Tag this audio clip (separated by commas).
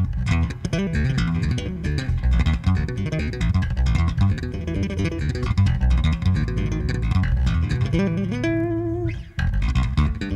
Music, Musical instrument, Plucked string instrument, Guitar